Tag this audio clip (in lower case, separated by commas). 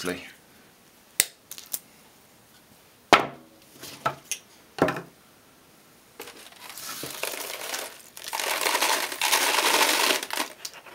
plastic bottle crushing